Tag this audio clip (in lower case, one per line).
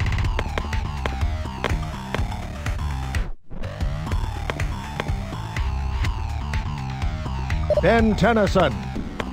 music
speech